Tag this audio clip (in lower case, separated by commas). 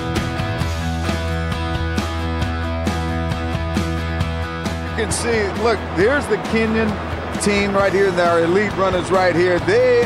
speech, music, outside, urban or man-made